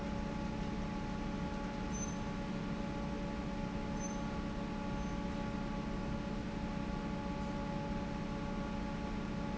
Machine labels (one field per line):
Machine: fan